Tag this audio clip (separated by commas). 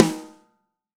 Percussion, Drum, Snare drum, Musical instrument, Music